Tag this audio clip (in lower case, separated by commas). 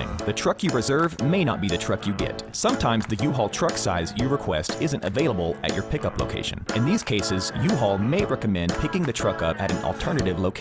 speech, music